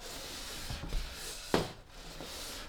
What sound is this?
wooden furniture moving